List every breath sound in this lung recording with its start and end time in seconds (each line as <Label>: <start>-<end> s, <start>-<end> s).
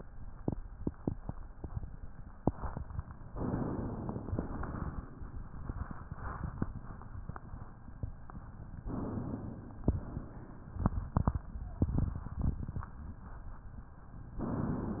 Inhalation: 3.33-4.32 s, 8.81-9.84 s, 14.41-15.00 s
Exhalation: 4.32-5.42 s, 9.84-10.91 s